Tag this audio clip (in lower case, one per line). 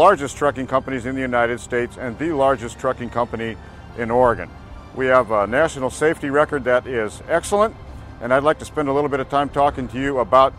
speech
music